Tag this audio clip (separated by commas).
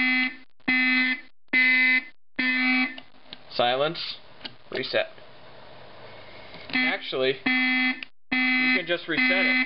inside a small room, Alarm, Speech, Fire alarm